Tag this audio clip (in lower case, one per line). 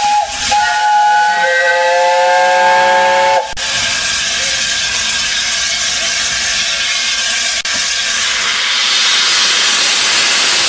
train whistling